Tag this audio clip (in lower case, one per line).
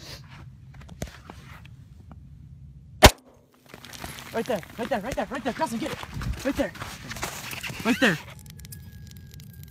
speech